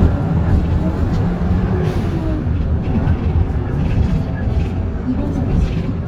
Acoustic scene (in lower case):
bus